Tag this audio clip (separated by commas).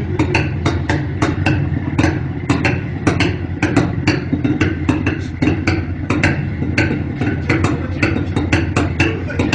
Speech